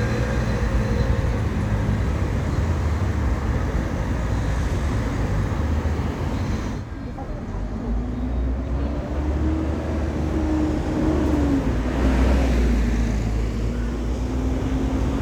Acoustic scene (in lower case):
street